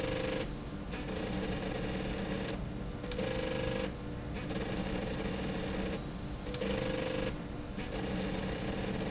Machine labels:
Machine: slide rail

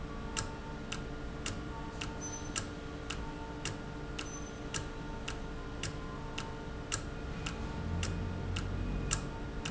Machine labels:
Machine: valve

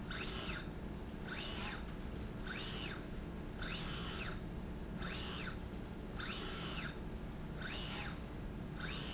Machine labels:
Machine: slide rail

